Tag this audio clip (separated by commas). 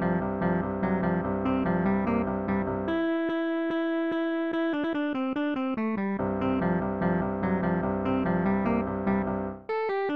Theme music, Music